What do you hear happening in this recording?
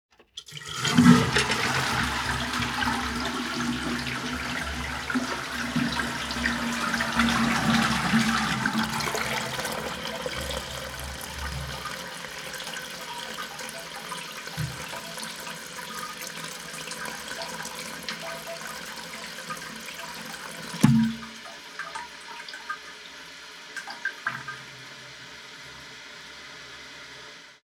I pressed the handle down and flushed the toilet, listening as the water rushed and drained. The tank began refilling on its own with a steady trickle. I then pulled the bathroom door shut behind me as I walked out.